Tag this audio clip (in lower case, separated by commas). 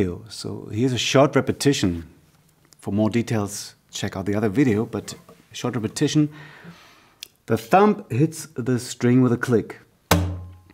speech